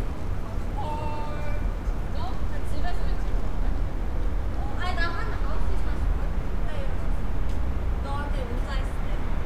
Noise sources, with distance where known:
person or small group talking, near

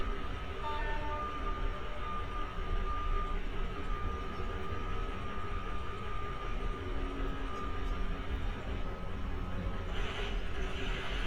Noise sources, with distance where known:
large-sounding engine, near; car horn, near; reverse beeper

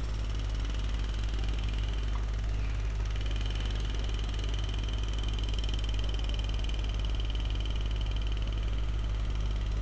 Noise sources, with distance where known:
jackhammer, far

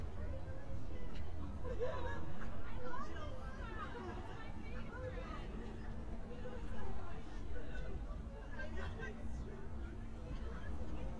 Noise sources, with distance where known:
person or small group talking, near

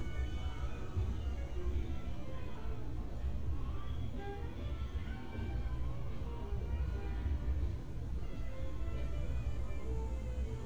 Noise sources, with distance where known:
music from an unclear source

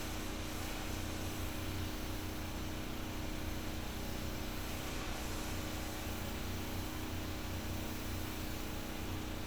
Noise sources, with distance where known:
unidentified impact machinery

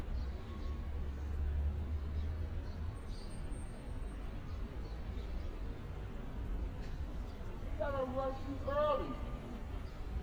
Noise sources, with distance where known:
person or small group shouting, far

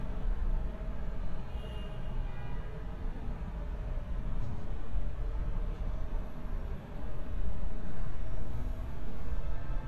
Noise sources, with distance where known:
car horn, far

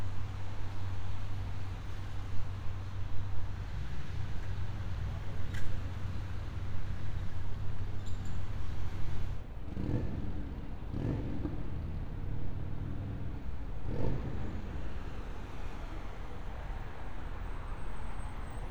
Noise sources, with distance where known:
medium-sounding engine

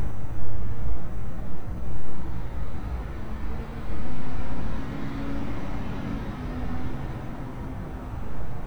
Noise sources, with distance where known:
engine of unclear size, near

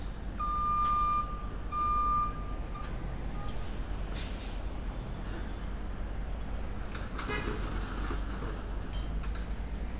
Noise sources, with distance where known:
car horn; reverse beeper

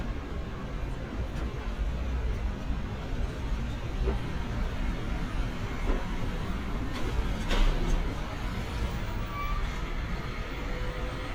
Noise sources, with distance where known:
large-sounding engine, near

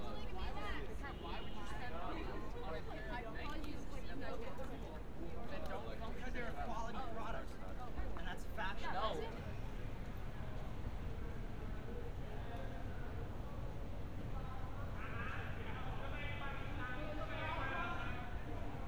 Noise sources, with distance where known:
person or small group shouting

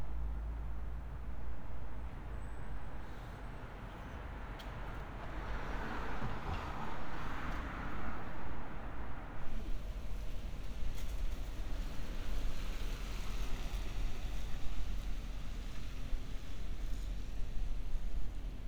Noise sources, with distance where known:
medium-sounding engine

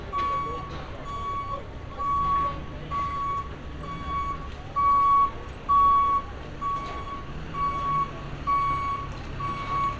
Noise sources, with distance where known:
reverse beeper, near

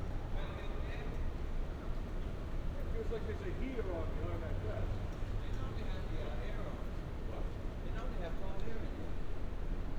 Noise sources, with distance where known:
person or small group talking, near

